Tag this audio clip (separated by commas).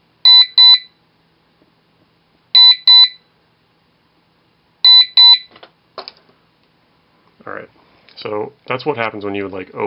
Speech, Alarm, inside a small room